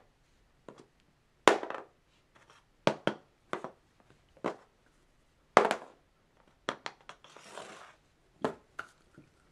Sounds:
inside a small room

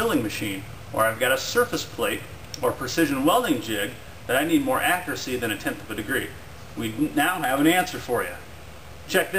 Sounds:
Speech

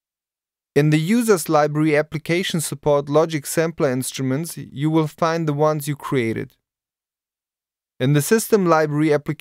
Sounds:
Speech

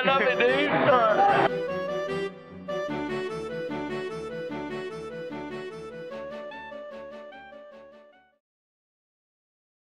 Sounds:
Speech, Music

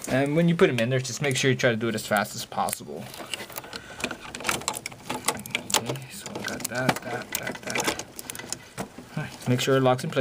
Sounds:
Speech

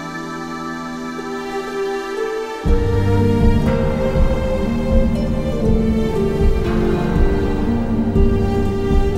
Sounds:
Background music, Tender music, Music

